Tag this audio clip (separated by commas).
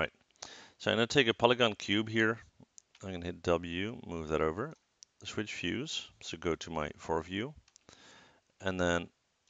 Speech